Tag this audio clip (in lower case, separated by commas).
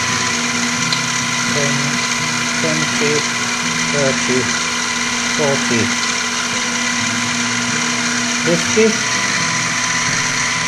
power tool, tools, speech